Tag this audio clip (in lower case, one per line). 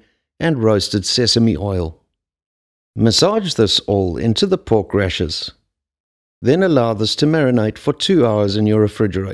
speech